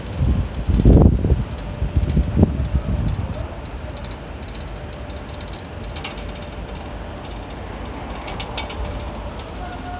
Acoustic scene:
street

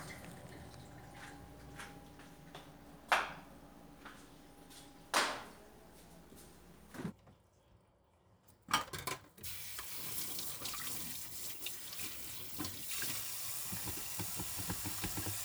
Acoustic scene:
kitchen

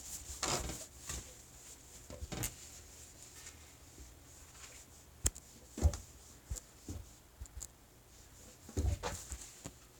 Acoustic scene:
kitchen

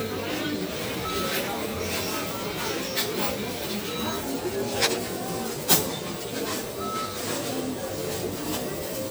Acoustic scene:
crowded indoor space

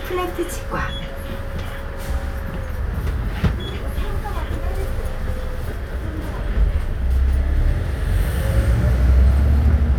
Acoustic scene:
bus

